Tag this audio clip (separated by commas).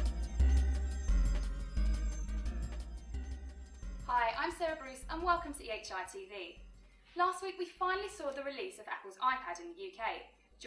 Music, Speech